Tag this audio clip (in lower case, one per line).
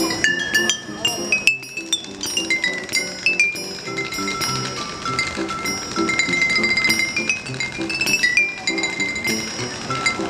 playing glockenspiel